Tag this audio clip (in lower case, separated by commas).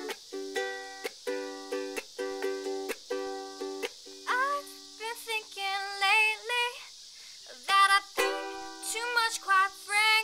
music